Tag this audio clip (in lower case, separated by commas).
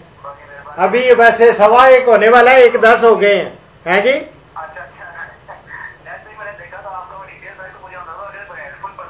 speech